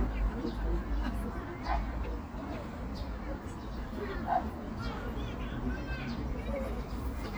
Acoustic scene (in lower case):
park